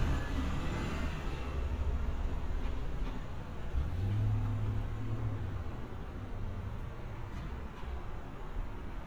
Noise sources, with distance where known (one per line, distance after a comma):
engine of unclear size